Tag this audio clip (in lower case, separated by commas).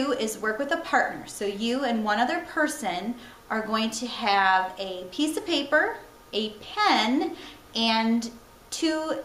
speech